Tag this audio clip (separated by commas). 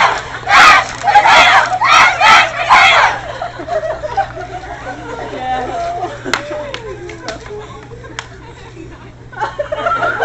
Speech, outside, urban or man-made